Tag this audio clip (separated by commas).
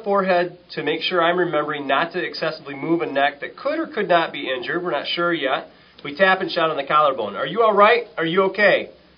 Speech